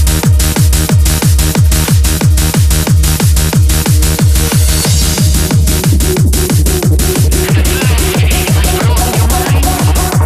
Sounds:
techno, electronic music, music

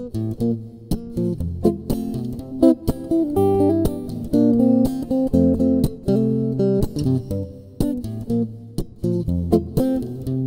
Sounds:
guitar, music, musical instrument, acoustic guitar

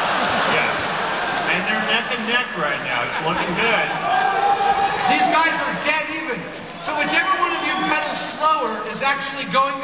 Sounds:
speech

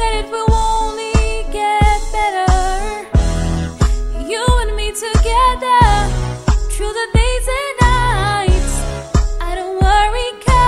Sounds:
female singing, music

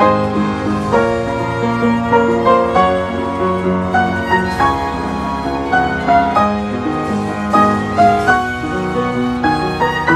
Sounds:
bowed string instrument, violin

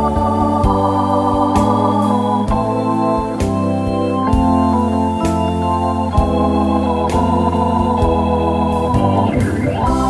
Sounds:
hammond organ, organ, playing hammond organ

